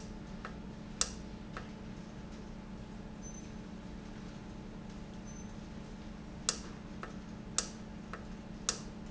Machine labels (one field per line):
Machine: valve